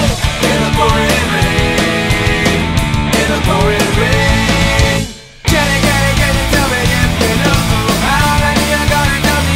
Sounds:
Music

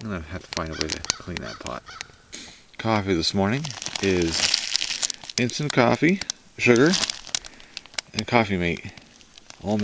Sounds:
Speech

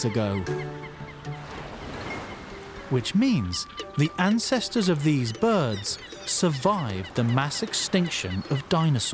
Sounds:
penguins braying

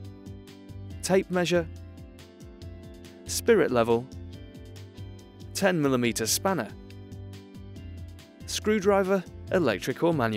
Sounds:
Music, Speech

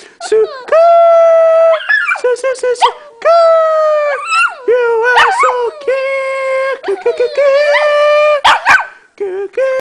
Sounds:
Male singing

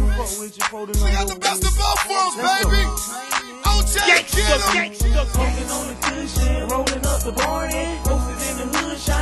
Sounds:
Music

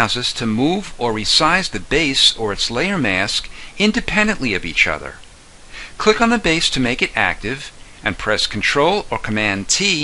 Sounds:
monologue

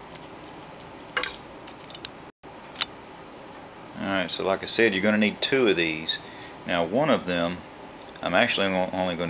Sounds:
inside a small room, Speech

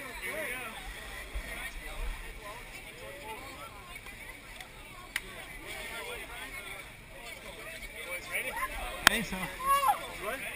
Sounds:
Speech

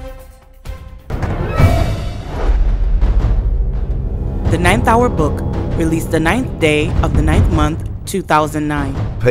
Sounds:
Music, Speech

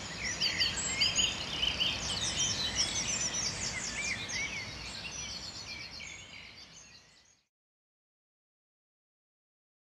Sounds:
Environmental noise, outside, rural or natural

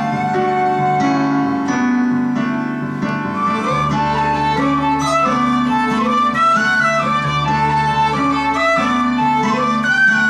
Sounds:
Music, Soul music

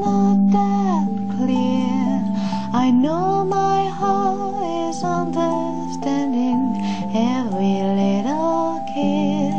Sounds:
Female singing, Music

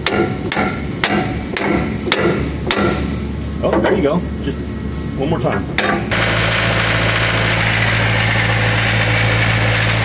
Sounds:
Speech

